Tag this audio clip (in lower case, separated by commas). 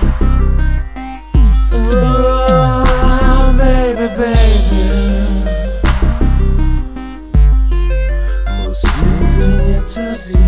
music, synthesizer